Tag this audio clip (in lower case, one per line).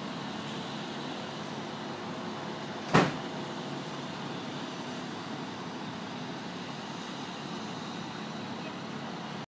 vehicle
motor vehicle (road)
car